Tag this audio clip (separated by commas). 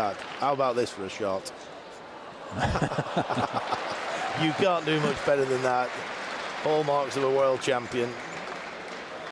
Speech